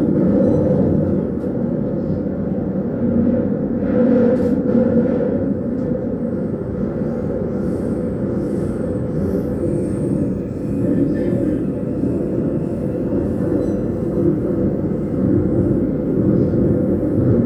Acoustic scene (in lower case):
subway train